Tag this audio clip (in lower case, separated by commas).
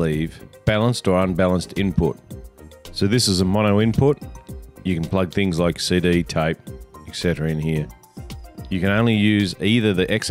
music, speech